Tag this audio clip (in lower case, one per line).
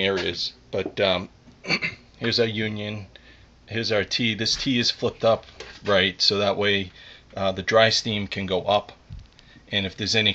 speech